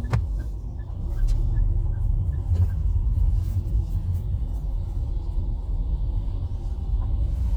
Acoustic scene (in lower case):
car